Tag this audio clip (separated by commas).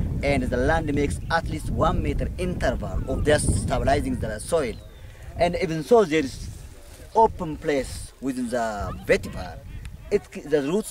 Speech